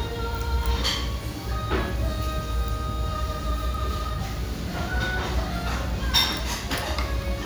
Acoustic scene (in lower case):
restaurant